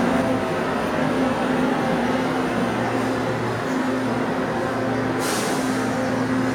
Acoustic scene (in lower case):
subway station